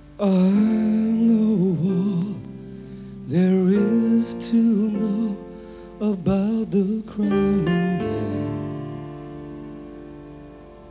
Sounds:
music

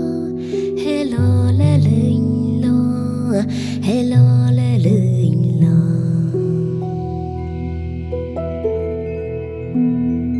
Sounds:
music

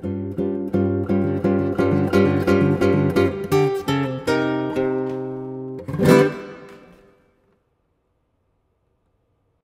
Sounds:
musical instrument, plucked string instrument, guitar, music

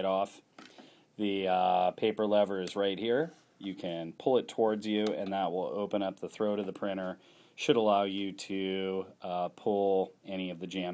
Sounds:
speech

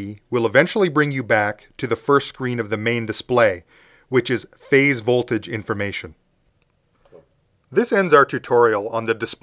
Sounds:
monologue, speech

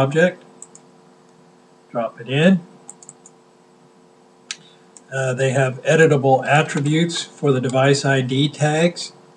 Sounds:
speech

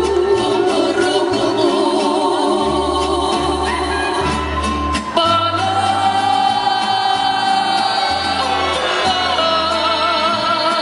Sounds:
music of latin america, music

